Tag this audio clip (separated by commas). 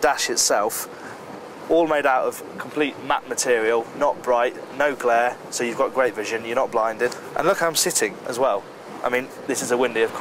speedboat, Speech, Boat, Vehicle